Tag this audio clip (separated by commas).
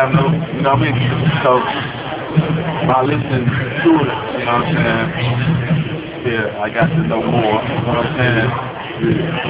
inside a large room or hall, Speech